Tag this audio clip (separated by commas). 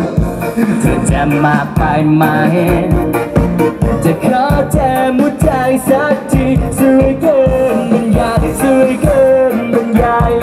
Music